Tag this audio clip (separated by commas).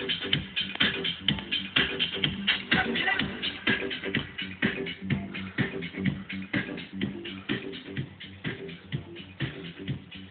Music